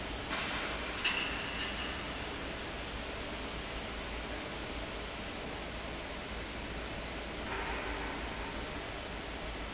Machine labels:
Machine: fan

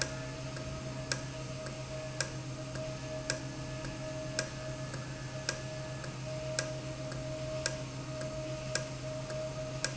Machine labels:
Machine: valve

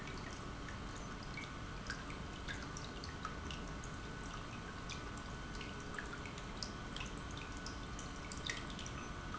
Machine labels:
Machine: pump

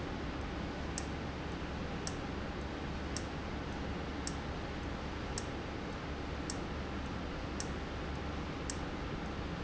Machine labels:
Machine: valve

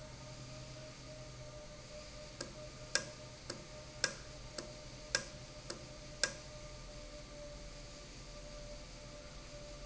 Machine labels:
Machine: valve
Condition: normal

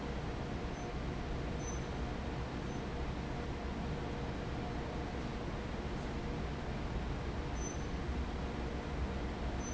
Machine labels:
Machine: fan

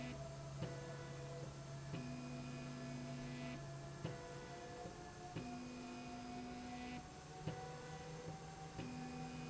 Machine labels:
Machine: slide rail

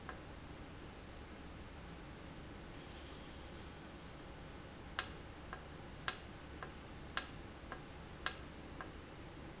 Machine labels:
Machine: valve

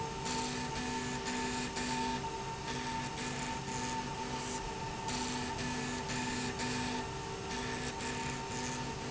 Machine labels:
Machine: slide rail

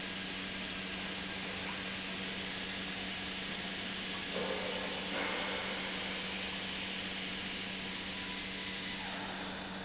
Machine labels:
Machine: pump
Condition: normal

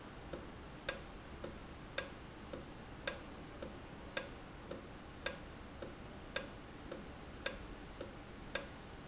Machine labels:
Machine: valve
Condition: normal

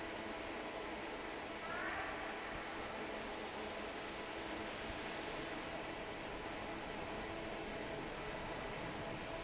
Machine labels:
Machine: fan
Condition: normal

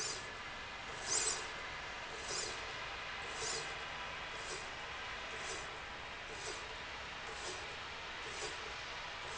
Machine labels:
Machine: slide rail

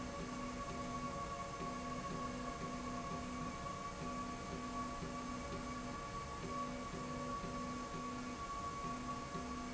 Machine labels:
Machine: slide rail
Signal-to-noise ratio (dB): 0 dB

